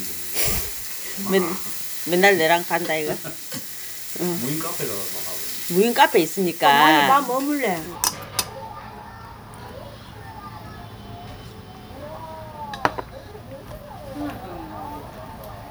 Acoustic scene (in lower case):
restaurant